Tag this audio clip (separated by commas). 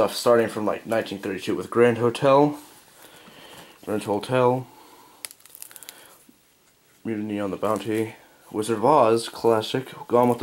inside a small room, Speech